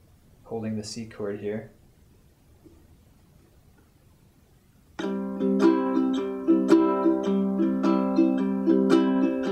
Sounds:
playing ukulele

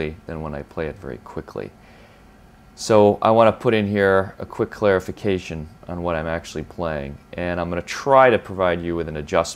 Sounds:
Speech

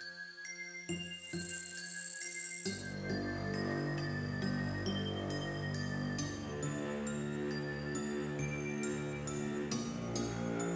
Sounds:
tinkle

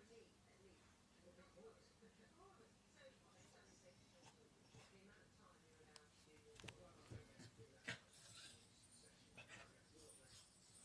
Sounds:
Animal, Domestic animals

